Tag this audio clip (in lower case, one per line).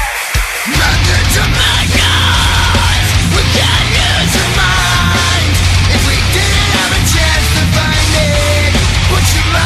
music